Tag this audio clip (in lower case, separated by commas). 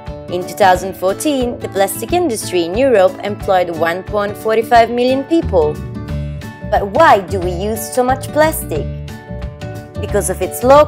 speech, music